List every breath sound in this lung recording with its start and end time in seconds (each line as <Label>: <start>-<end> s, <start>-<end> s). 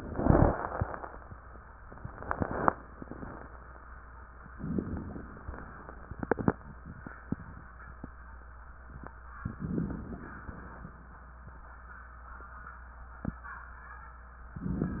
Inhalation: 4.51-5.48 s, 9.41-10.30 s
Exhalation: 10.31-11.27 s